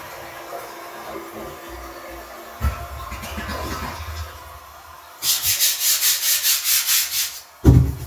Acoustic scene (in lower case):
restroom